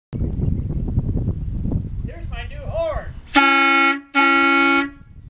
Wind blows by, followed by a man yelling, after which a horn honks